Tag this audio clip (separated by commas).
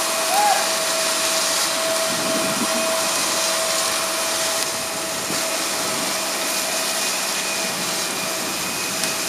Fire